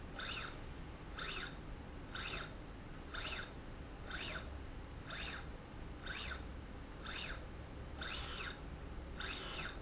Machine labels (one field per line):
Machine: slide rail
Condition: normal